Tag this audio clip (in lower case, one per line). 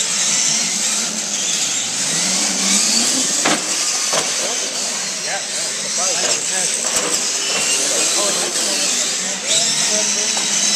speech